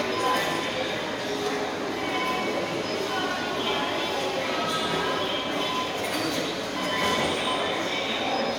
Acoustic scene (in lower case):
subway station